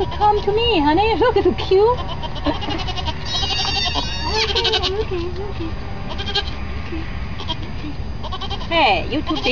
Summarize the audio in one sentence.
A woman is speaking and goats are bleating